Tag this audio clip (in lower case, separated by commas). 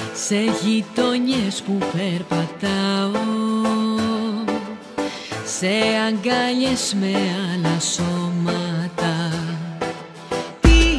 music